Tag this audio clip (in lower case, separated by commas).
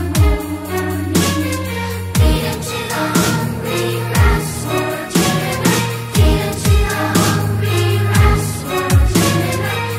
music, dubstep